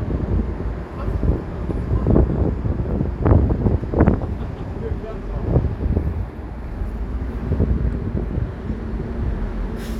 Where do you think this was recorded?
on a street